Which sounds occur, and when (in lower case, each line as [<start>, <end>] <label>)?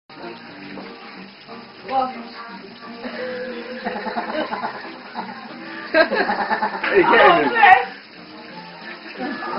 [0.06, 9.55] mechanisms
[0.09, 9.55] music
[0.09, 9.55] faucet
[1.88, 9.55] conversation
[1.89, 2.21] woman speaking
[2.28, 2.96] woman speaking
[3.77, 4.98] laughter
[5.09, 5.47] laughter
[5.44, 5.90] breathing
[5.95, 6.93] laughter
[6.81, 7.29] man speaking
[7.14, 7.95] woman speaking